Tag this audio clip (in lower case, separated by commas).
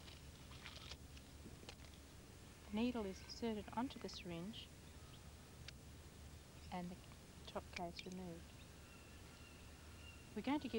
speech